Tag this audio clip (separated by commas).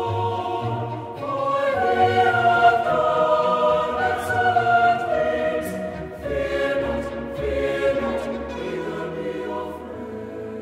Choir, Music